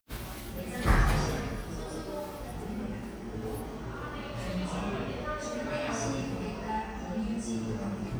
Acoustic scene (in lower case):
cafe